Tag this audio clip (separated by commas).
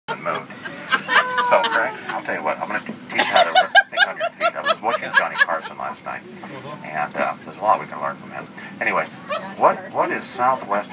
inside a small room, Speech